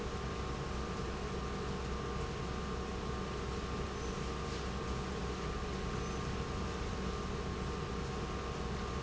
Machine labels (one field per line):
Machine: pump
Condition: normal